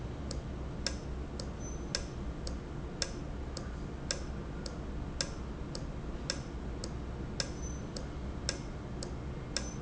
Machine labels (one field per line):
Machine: valve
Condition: normal